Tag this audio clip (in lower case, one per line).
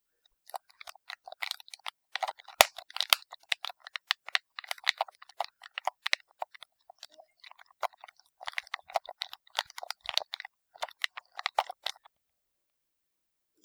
typing
domestic sounds